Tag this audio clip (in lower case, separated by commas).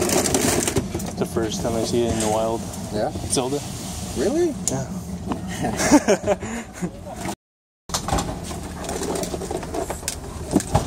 speech, inside a small room